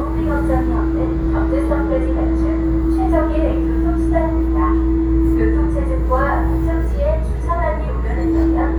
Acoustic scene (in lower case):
subway train